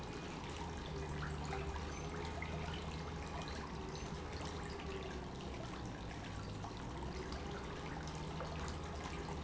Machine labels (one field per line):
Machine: pump